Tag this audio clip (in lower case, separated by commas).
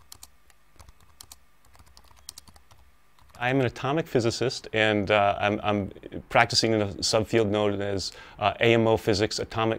speech